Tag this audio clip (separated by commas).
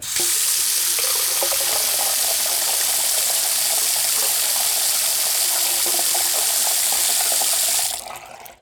home sounds, faucet, Water